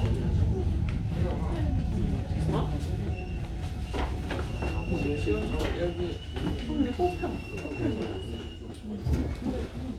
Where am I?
on a subway train